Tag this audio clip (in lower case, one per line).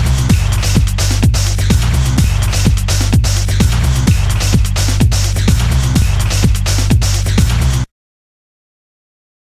theme music
music
exciting music